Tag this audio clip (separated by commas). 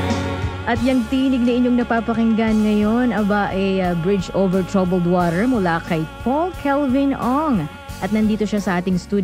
Music, Speech